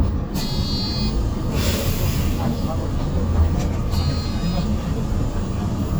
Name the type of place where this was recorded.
bus